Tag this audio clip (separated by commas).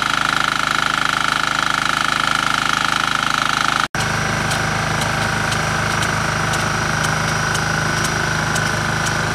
Engine, Medium engine (mid frequency), Idling